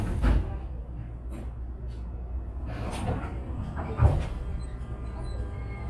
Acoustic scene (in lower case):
subway train